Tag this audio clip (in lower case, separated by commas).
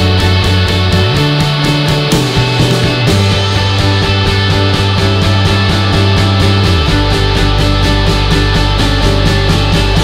music